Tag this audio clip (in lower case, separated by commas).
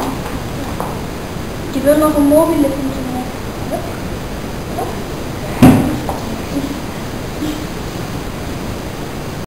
speech